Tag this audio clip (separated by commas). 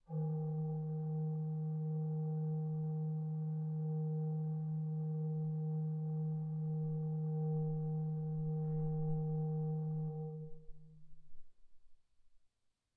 Organ, Keyboard (musical), Musical instrument, Music